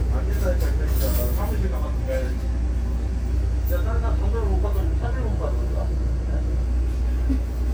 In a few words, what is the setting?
bus